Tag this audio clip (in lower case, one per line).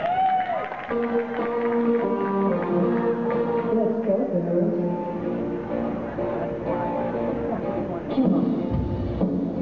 speech
music
inside a large room or hall